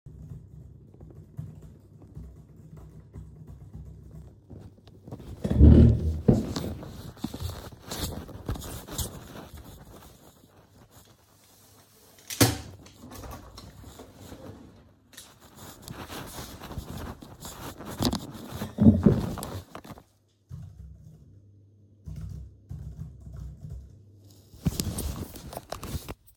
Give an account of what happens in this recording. I was working on my laptop, stood up, walked to the window and opened it, walked back to my laptop, sat down and continued working